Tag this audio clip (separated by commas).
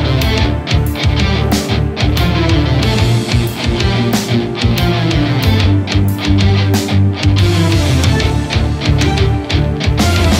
Guitar, Bass guitar, Music, Electric guitar, Musical instrument